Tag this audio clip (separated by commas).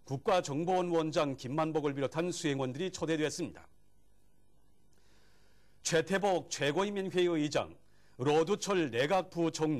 Speech